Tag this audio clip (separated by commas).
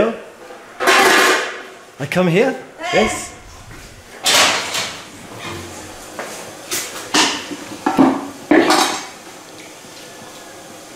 inside a large room or hall, Speech